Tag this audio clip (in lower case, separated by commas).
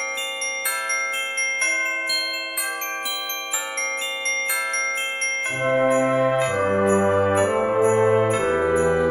glockenspiel, music